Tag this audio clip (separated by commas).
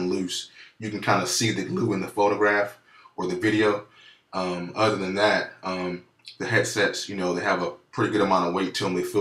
Speech